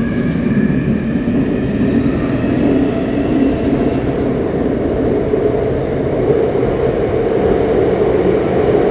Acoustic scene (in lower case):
subway train